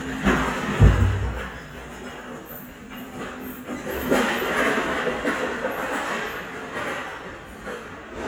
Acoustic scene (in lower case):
restaurant